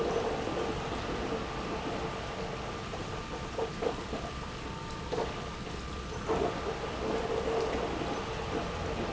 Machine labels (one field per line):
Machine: pump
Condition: abnormal